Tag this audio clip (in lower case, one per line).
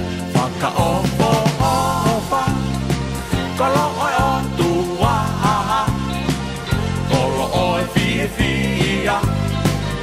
music